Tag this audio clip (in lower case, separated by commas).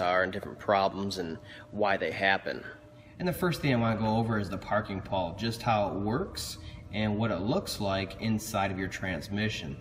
speech